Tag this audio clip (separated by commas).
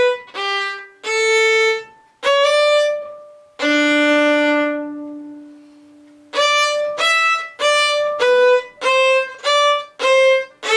Violin, Music, Musical instrument